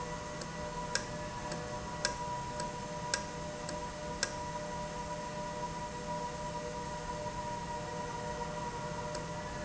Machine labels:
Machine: valve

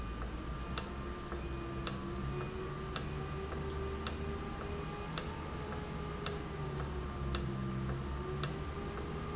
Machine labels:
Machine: valve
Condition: normal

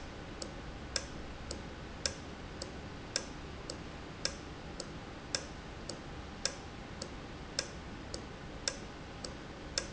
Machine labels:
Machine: valve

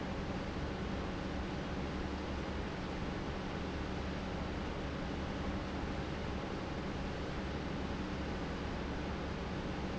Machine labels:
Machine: pump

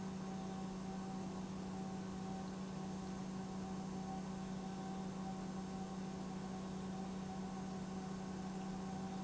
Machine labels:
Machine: pump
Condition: normal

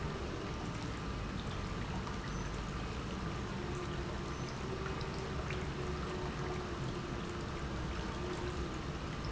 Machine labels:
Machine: pump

